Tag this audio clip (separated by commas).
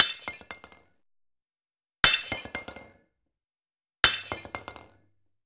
Shatter, Glass